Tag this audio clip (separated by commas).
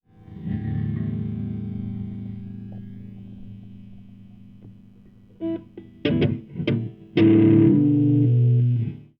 Musical instrument, Plucked string instrument, Music, Guitar